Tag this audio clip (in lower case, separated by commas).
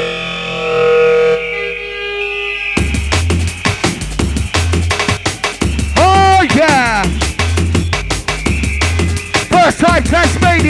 air horn, music